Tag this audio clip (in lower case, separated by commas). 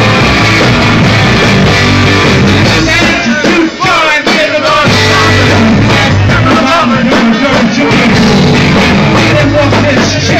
music